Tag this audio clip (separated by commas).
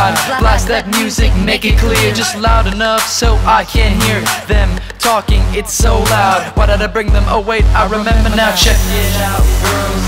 Music